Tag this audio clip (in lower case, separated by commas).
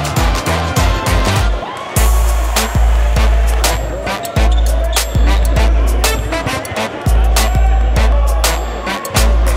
music, speech, basketball bounce